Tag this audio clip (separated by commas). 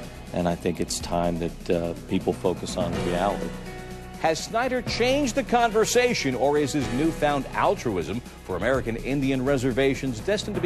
Music, Speech